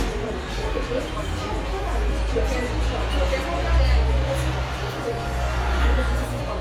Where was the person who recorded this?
in a cafe